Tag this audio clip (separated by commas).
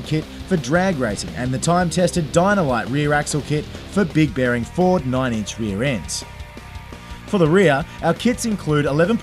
Music, Speech